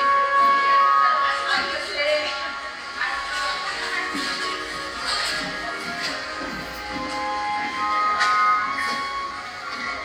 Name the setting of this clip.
cafe